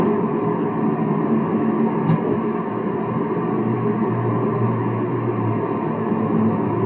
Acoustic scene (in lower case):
car